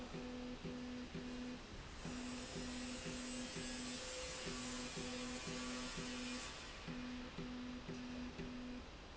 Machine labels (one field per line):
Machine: slide rail